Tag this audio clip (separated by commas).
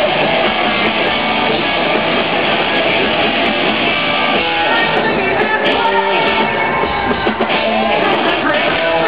Music, Progressive rock, Rock music, Heavy metal, Shout